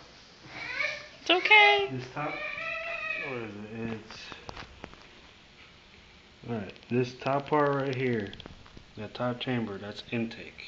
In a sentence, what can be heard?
A baby crying with a woman and man speaking